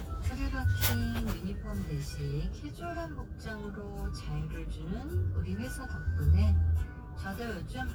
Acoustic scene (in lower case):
car